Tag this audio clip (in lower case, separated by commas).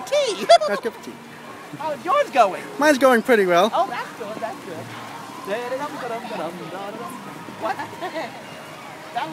speech, walk